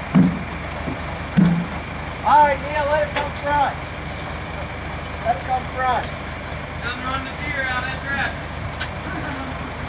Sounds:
speech, vehicle, truck

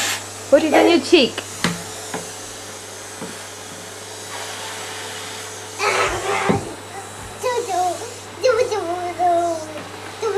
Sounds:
vacuum cleaner

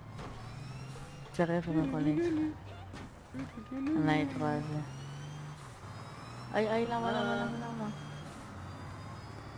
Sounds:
speech

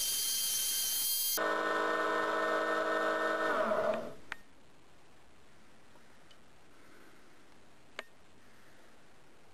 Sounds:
tools

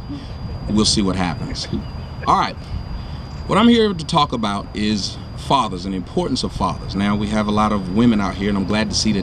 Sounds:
narration, speech, male speech

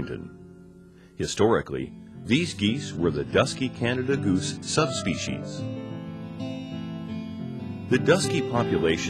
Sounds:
music, speech

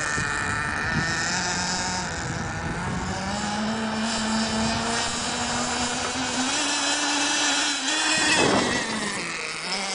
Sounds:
speedboat, water vehicle

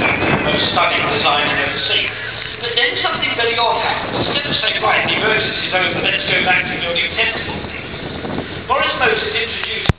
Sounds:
speech

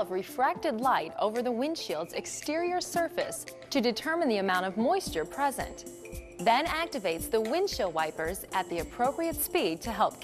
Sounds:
music, speech

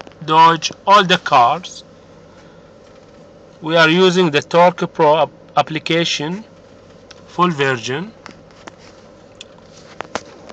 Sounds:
speech

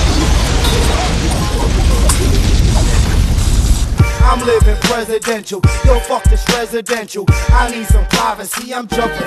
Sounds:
background music, rhythm and blues, music

